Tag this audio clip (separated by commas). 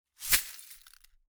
Glass